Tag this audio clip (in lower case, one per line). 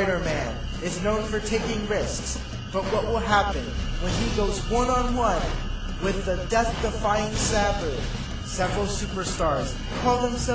speech